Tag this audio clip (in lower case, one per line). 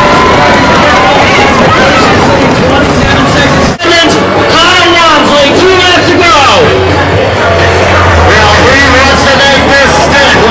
music
speech
bicycle
vehicle